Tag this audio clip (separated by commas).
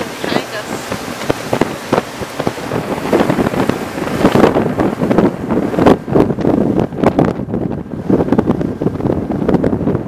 Wind noise (microphone), Water vehicle, Wind